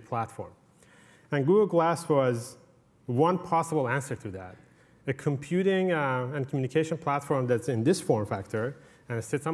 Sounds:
speech

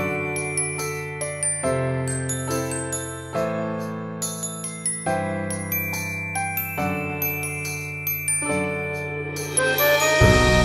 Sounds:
playing glockenspiel

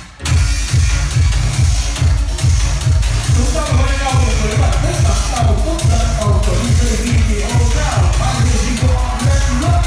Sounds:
disco
music
speech

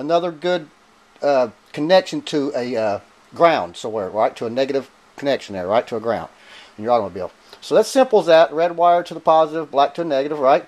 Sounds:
speech

